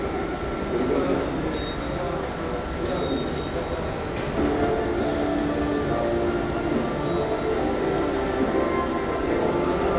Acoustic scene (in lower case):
subway station